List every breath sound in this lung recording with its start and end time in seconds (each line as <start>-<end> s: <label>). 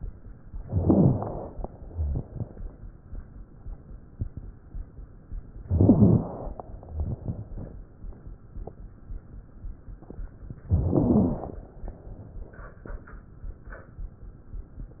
0.63-1.58 s: crackles
0.65-1.60 s: inhalation
5.66-6.60 s: inhalation
5.66-6.60 s: crackles
10.68-11.63 s: inhalation
10.68-11.63 s: crackles